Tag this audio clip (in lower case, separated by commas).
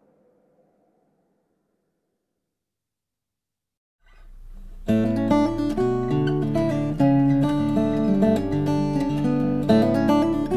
musical instrument, guitar, music